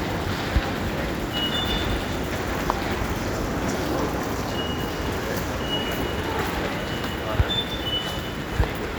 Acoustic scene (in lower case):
subway station